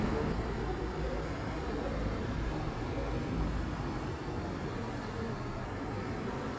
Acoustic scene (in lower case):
street